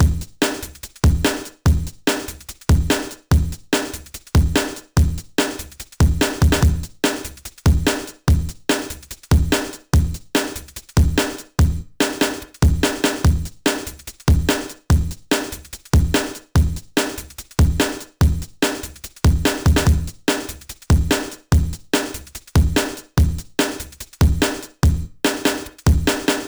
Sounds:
drum kit, music, musical instrument, percussion

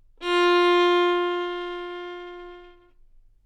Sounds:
bowed string instrument, musical instrument, music

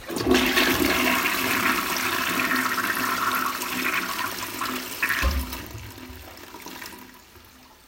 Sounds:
toilet flush, domestic sounds

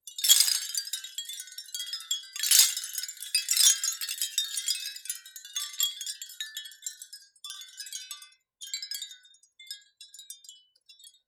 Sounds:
chime, bell, wind chime

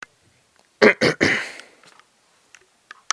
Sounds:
respiratory sounds, cough

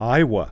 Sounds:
human voice, man speaking, speech

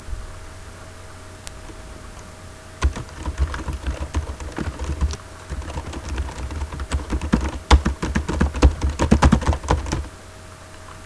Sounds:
domestic sounds, typing

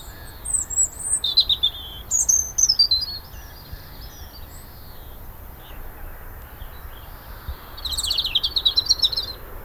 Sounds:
animal, wild animals, bird song, bird

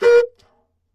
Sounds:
wind instrument, music, musical instrument

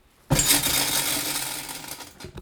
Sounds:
tools

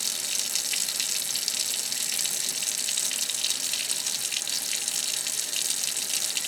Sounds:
home sounds, sink (filling or washing), faucet

